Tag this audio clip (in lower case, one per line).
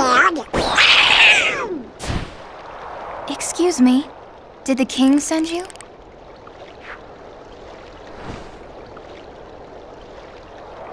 speech